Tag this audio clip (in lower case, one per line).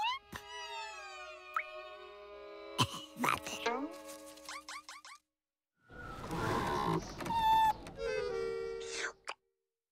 music
speech